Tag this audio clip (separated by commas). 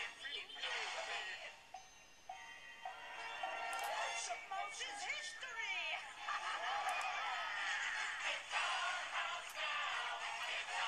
Theme music, Happy music, Music